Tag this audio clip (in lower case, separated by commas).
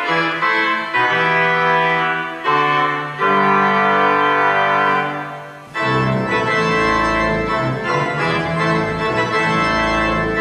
music, independent music